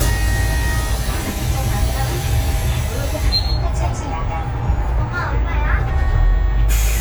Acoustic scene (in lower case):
bus